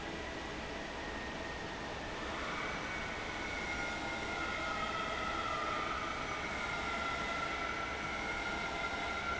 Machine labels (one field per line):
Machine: fan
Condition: normal